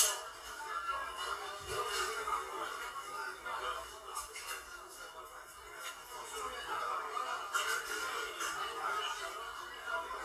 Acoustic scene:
crowded indoor space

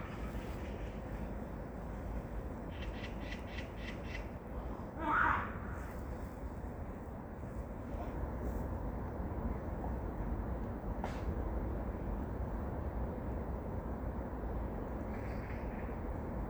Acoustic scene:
park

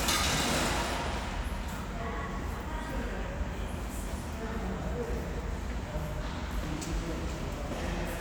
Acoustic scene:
subway station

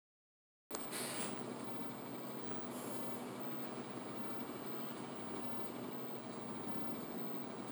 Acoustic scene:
bus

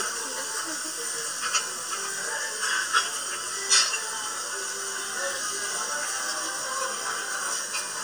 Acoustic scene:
restaurant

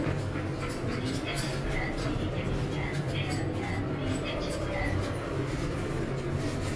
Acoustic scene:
elevator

